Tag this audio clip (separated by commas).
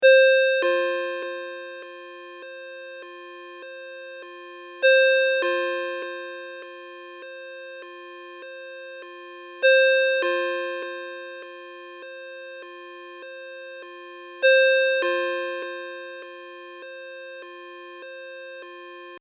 Ringtone, Telephone, Alarm